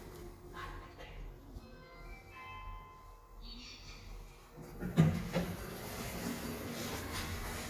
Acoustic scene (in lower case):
elevator